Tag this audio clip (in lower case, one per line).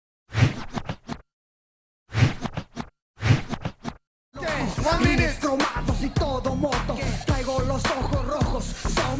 music
inside a public space
inside a large room or hall